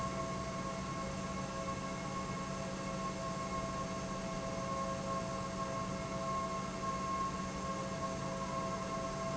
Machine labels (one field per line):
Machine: pump